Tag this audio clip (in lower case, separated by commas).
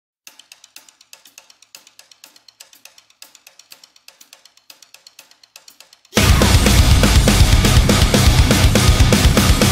hip hop music, music